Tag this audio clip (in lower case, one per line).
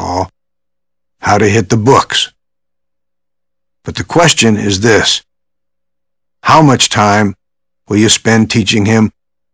radio
speech